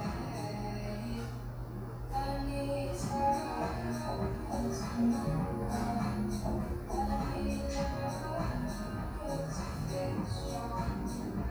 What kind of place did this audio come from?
cafe